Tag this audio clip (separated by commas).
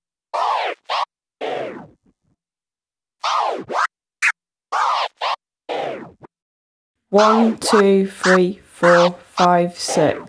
Scratching (performance technique), Speech